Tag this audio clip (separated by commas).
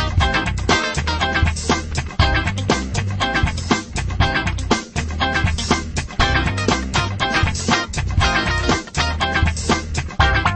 Music, Spray